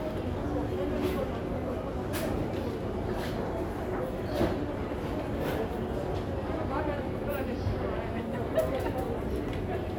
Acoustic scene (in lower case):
crowded indoor space